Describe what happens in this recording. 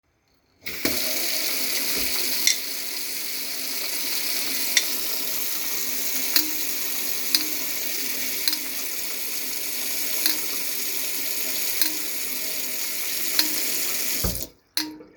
I arranged cutlery to wash meanwhile tap water is flowing in basin.